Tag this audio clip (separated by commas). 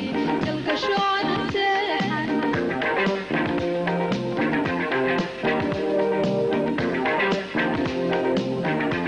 Music